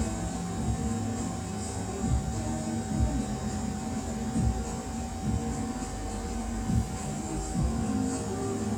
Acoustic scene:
cafe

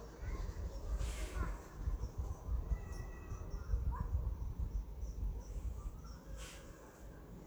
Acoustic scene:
residential area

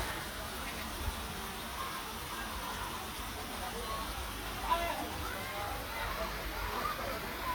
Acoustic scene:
park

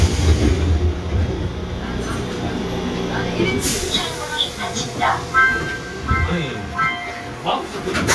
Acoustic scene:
subway train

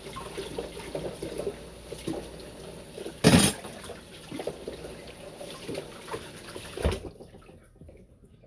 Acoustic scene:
kitchen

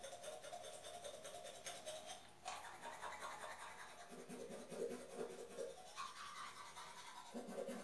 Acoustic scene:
restroom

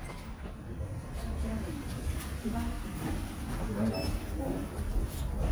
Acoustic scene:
elevator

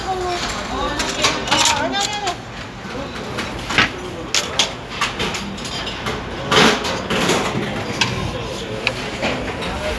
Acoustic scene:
restaurant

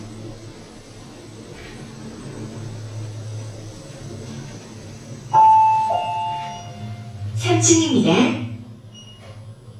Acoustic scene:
elevator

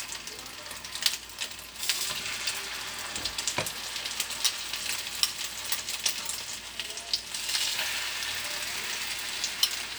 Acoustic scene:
kitchen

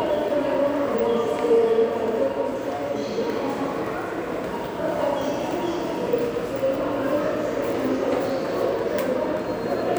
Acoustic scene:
subway station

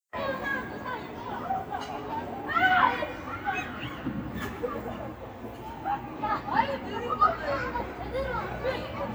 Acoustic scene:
residential area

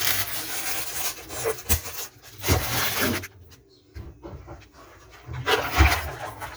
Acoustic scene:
kitchen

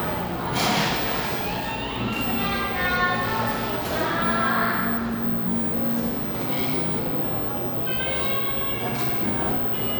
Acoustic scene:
cafe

